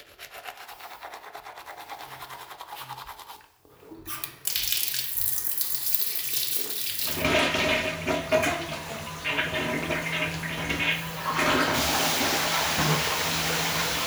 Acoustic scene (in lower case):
restroom